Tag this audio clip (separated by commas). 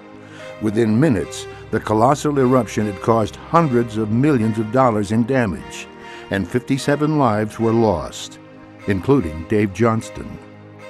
Music, Speech